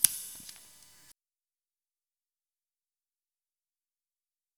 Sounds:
Scissors, home sounds

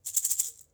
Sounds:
Music, Musical instrument, Percussion, Rattle (instrument)

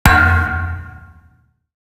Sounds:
thud

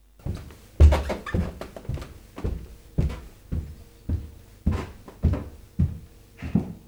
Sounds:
Walk

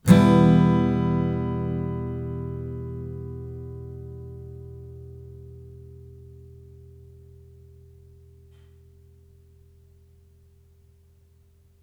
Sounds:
Guitar, Musical instrument, Plucked string instrument, Strum, Music

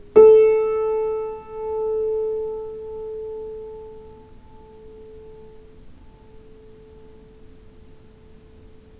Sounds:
Piano, Keyboard (musical), Music, Musical instrument

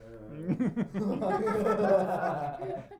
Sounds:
Human voice, chortle, Laughter

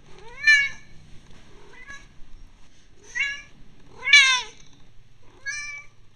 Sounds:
Animal, Cat, pets

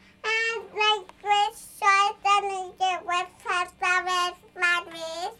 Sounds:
Speech, Human voice

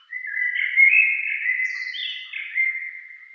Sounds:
Animal, Bird, Wild animals

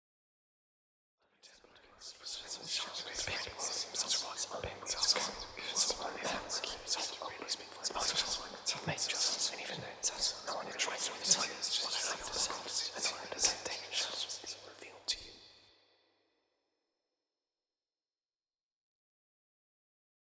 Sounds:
Whispering, Human voice

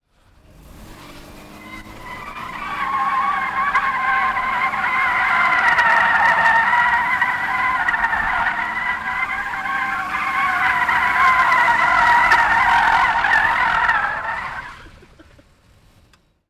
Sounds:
Vehicle, Motor vehicle (road), Car

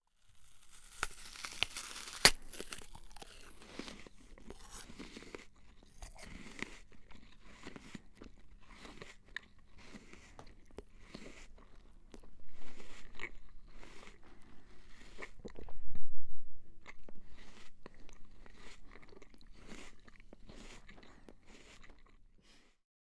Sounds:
mastication

